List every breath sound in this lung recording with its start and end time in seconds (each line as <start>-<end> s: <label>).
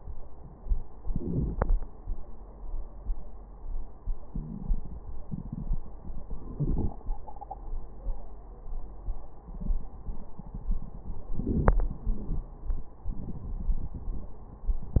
0.98-1.78 s: inhalation
4.28-4.74 s: wheeze
6.48-7.04 s: inhalation
11.30-11.80 s: inhalation
11.79-12.54 s: exhalation
12.10-12.46 s: wheeze